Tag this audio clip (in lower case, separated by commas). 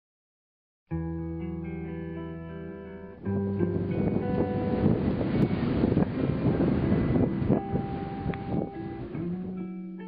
music, outside, rural or natural